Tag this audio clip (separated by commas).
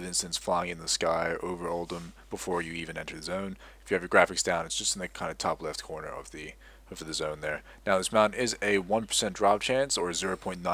Speech